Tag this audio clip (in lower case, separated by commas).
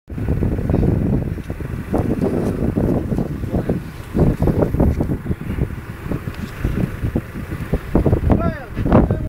speech